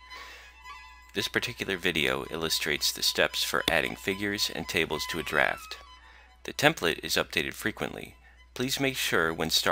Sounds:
music, speech

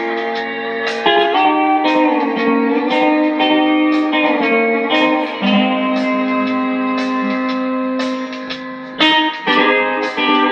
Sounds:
musical instrument, music, guitar, plucked string instrument, strum

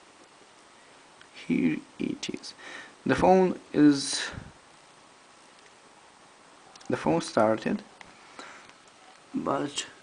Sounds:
inside a small room, speech

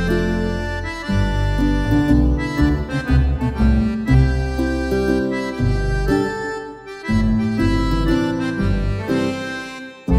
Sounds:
music, accordion

